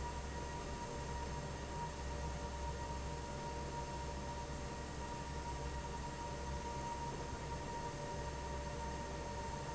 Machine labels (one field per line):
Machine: fan